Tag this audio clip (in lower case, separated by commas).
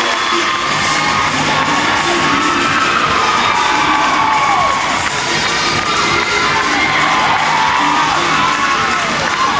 crowd, cheering, music